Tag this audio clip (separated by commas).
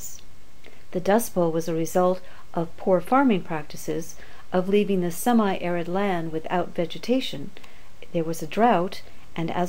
Speech